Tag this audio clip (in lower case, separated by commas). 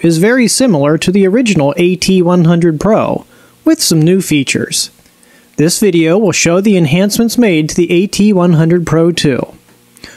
narration, speech